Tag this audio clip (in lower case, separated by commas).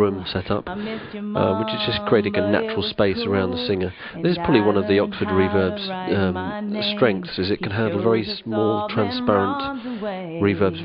speech